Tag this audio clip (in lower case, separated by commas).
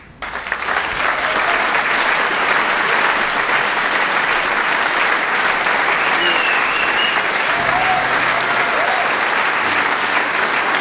applause, people clapping